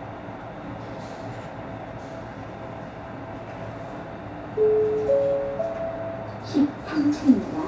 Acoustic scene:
elevator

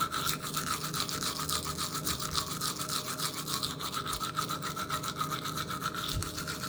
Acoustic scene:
restroom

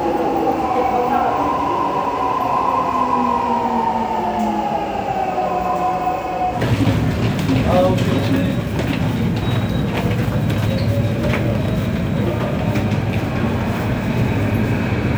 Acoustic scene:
subway station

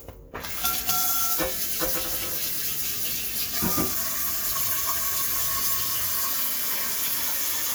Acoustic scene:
kitchen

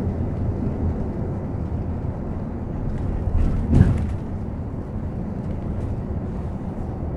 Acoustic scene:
bus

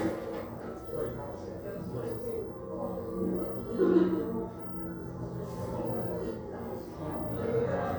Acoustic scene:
crowded indoor space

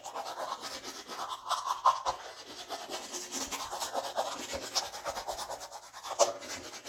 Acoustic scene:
restroom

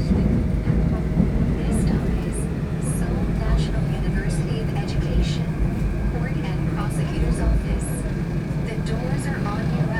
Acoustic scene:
subway train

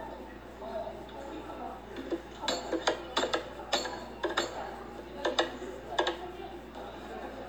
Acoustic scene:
cafe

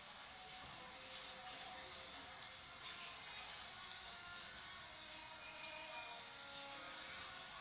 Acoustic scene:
cafe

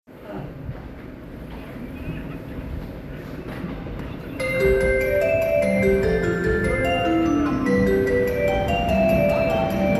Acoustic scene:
subway station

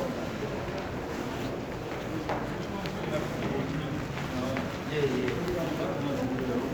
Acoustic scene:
crowded indoor space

